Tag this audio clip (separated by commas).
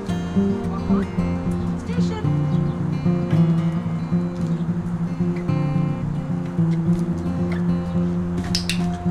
Music, Speech